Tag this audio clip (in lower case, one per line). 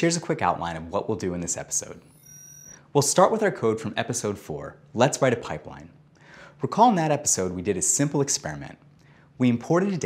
speech